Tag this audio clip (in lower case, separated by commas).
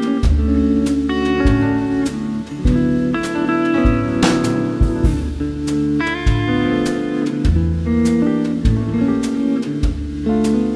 music